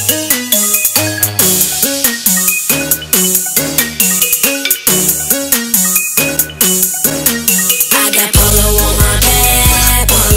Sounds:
Music

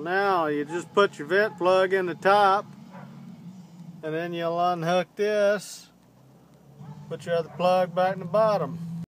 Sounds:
Speech

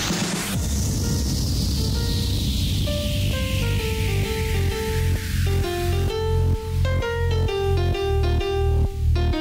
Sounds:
Music

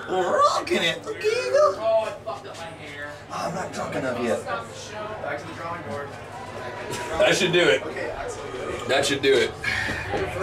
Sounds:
Speech

